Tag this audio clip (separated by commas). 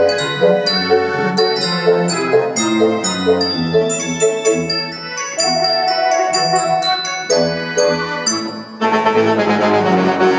Piano, Music, Keyboard (musical), Musical instrument, Classical music, Organ